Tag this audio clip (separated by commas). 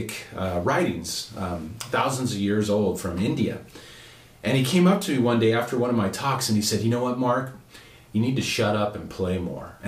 Speech